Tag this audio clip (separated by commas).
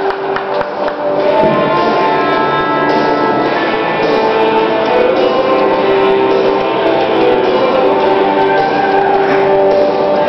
Music